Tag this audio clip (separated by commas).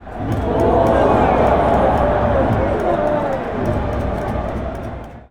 Human group actions, Crowd